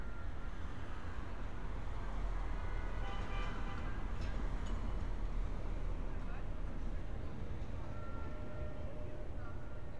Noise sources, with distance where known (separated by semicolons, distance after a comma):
car horn